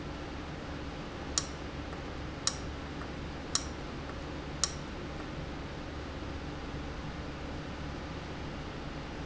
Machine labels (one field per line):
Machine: valve